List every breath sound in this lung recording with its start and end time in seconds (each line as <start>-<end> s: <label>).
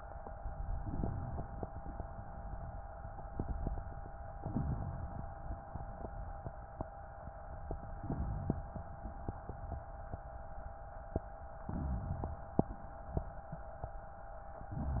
4.34-5.67 s: inhalation
5.66-6.90 s: exhalation
7.73-8.99 s: inhalation
11.56-12.63 s: inhalation